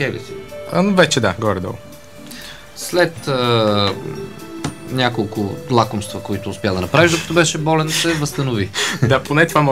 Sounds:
speech
music

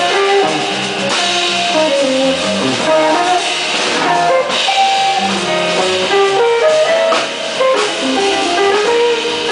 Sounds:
plucked string instrument
musical instrument
electric guitar
guitar
music

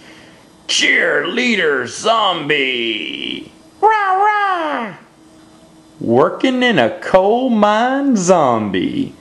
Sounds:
speech
inside a small room

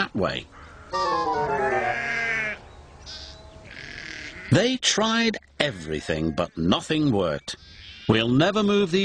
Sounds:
music
outside, rural or natural
speech

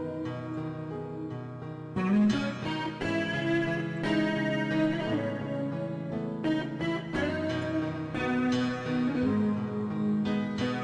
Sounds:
music

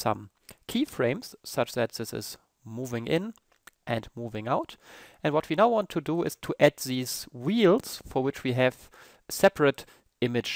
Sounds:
speech

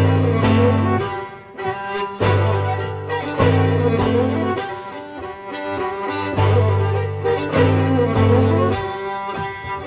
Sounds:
country
music
fiddle
musical instrument
bowed string instrument

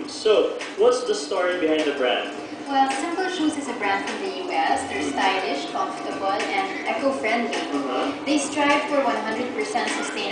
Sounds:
music
speech

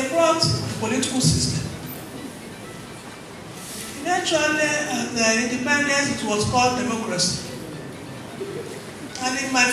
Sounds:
music

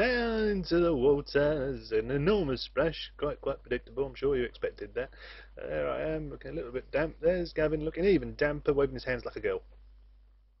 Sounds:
speech

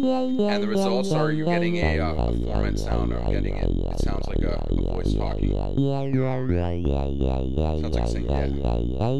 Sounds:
speech

